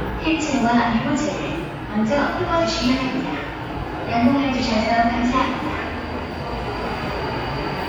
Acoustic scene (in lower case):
subway station